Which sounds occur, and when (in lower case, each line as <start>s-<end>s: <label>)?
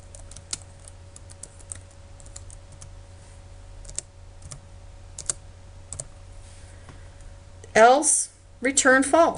0.0s-9.3s: mechanisms
0.1s-0.3s: computer keyboard
0.5s-0.5s: computer keyboard
0.7s-0.8s: computer keyboard
1.1s-1.8s: computer keyboard
2.2s-2.5s: computer keyboard
2.6s-2.8s: computer keyboard
3.1s-3.3s: surface contact
3.8s-4.0s: computer keyboard
4.4s-4.5s: computer keyboard
5.1s-5.3s: computer keyboard
5.9s-6.0s: computer keyboard
6.4s-6.9s: breathing
6.8s-6.9s: tap
7.1s-7.2s: clicking
7.7s-8.3s: female speech
8.6s-9.3s: female speech